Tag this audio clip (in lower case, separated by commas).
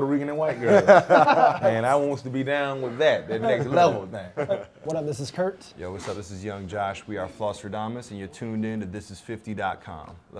speech